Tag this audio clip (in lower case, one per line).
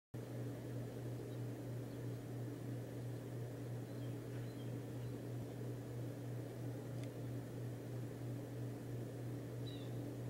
bird